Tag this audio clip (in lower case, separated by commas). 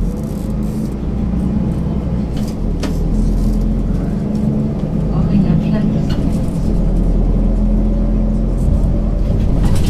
vehicle, speech